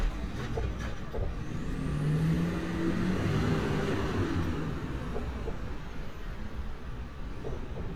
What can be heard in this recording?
large-sounding engine